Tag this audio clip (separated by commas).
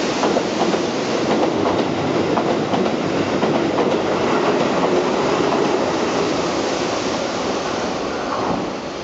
Vehicle, Train, outside, urban or man-made